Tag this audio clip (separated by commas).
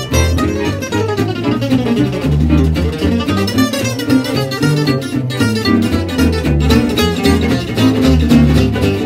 Plucked string instrument, Bowed string instrument, Musical instrument, Acoustic guitar, Guitar, Violin, Music, playing acoustic guitar, Flamenco